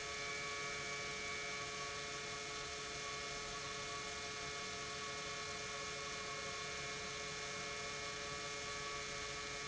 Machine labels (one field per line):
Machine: pump